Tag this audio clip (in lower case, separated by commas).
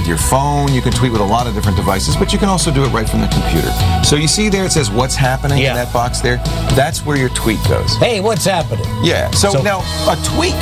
speech, music